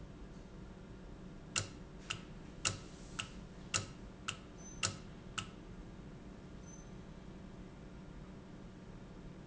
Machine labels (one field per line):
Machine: valve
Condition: normal